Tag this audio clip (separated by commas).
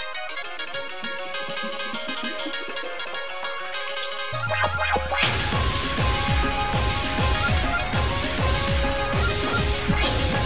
Music